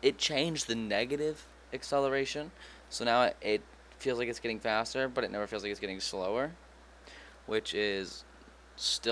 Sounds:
speech

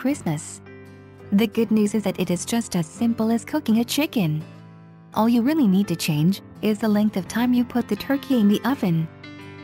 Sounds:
music
speech

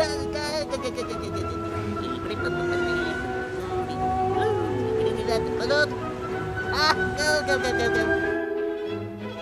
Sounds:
music
speech

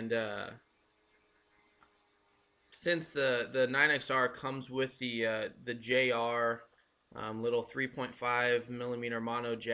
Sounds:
speech

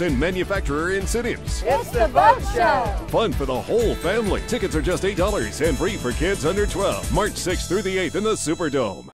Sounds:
speech
music

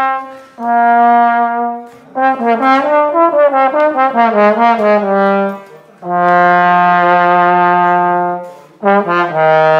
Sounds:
playing trombone

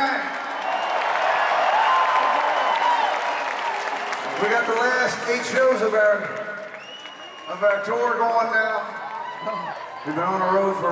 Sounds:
speech

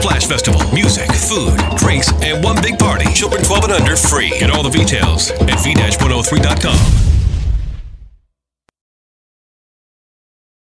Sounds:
speech
music

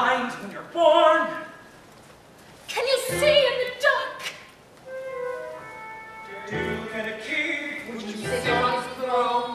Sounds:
music
speech

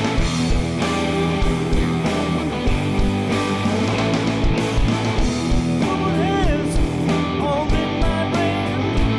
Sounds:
music

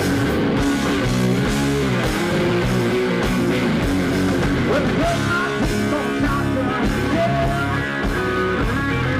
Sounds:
country
music

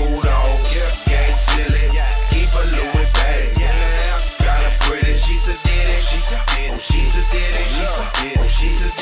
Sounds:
music

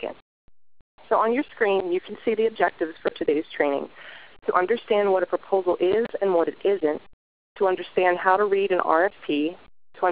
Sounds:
speech

